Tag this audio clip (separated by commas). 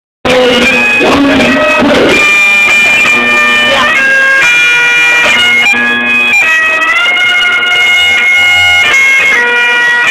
Bagpipes, woodwind instrument